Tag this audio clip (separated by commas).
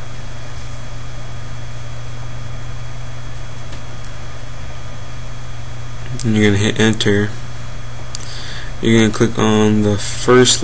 Speech